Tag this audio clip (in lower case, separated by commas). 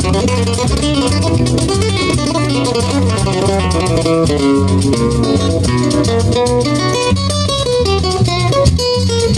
plucked string instrument, music, musical instrument, strum, guitar